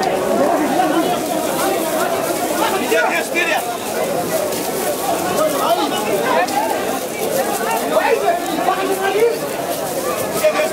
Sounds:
Speech

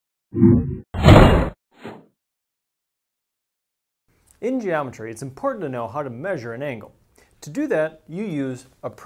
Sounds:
Speech, inside a small room

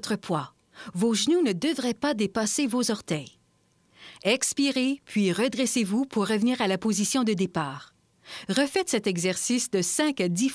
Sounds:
Speech

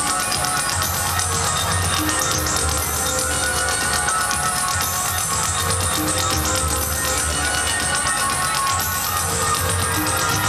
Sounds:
Music

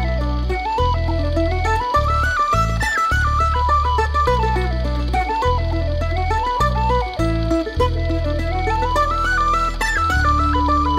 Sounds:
Music

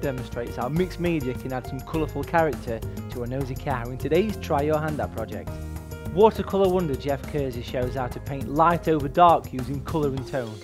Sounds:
Music, Speech

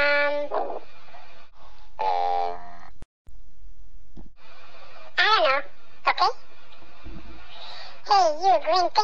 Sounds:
Bow-wow, Speech

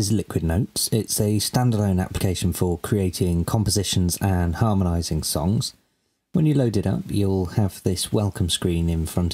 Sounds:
Speech

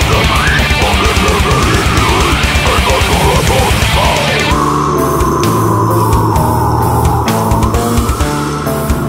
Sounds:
Music

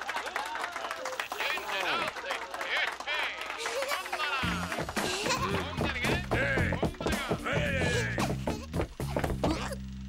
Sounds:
Speech, Music

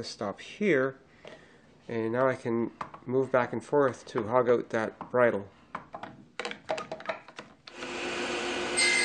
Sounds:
Speech, Tools

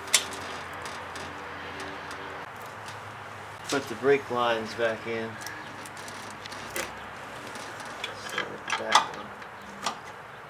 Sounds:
outside, urban or man-made, Speech

